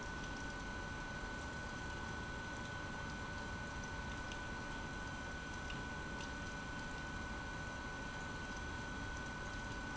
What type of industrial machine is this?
pump